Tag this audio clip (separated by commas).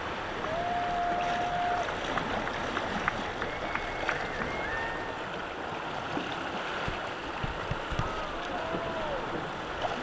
Boat, rowboat, canoe